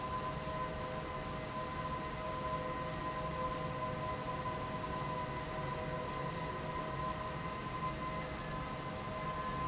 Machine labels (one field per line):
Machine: fan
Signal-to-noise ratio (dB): -6 dB